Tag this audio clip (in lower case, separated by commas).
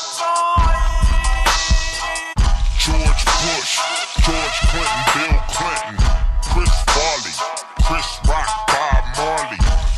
music